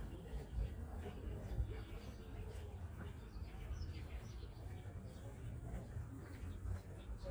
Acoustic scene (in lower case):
park